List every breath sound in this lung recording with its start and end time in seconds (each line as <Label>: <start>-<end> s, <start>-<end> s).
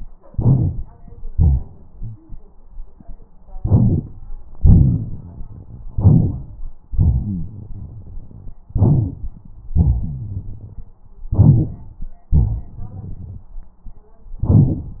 Inhalation: 0.27-1.01 s, 3.59-4.21 s, 5.94-6.78 s, 8.72-9.53 s, 11.32-12.12 s
Exhalation: 1.33-2.35 s, 4.57-5.81 s, 6.95-8.58 s, 9.76-10.86 s, 12.31-13.52 s
Rhonchi: 6.96-7.46 s, 9.71-10.85 s
Crackles: 3.59-4.21 s, 4.57-5.81 s, 12.31-13.52 s